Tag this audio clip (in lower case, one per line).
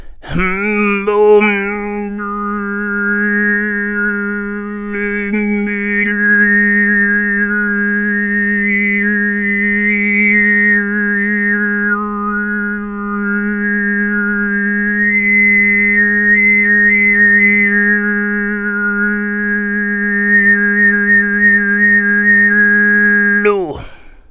singing
human voice